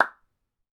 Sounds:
Hands, Clapping

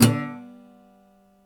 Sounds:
Music, Musical instrument, Plucked string instrument, Guitar

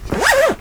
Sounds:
home sounds, Zipper (clothing)

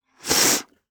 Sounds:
Respiratory sounds

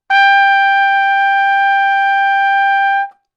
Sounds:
Musical instrument, Music, Trumpet, Brass instrument

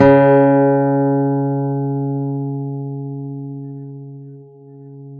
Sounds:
Guitar, Acoustic guitar, Musical instrument, Plucked string instrument, Music

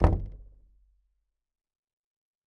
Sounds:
Door, home sounds, Knock

